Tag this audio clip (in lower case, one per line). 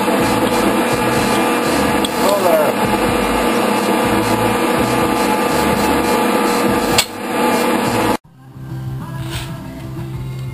speech